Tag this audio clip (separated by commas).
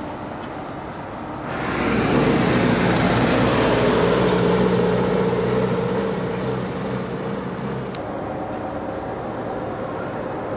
Field recording, outside, urban or man-made, Vehicle